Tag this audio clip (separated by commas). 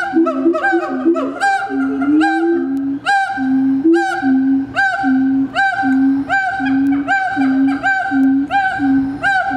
gibbon howling